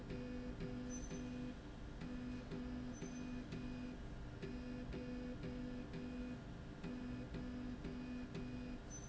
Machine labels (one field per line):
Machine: slide rail